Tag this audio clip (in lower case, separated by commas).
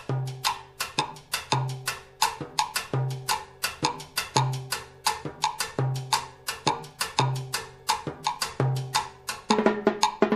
playing timbales